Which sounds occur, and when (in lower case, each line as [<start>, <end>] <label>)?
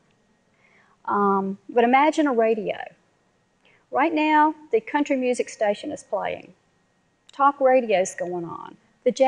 [0.00, 9.25] background noise
[0.44, 0.98] breathing
[1.04, 3.01] female speech
[3.62, 3.90] breathing
[3.91, 6.48] female speech
[7.27, 8.77] female speech